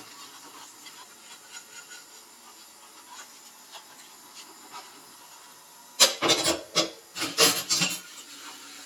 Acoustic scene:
kitchen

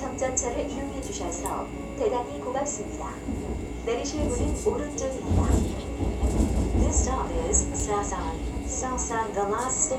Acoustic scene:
subway train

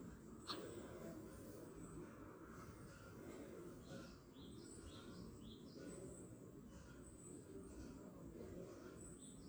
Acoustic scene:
park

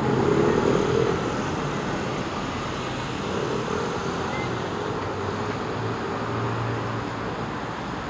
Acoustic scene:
street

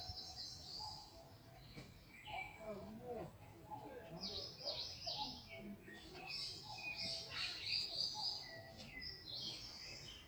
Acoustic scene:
park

